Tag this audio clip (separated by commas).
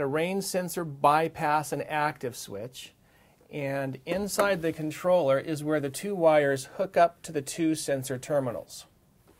Speech